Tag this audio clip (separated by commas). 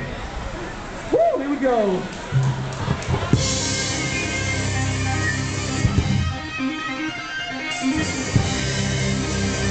Speech, Music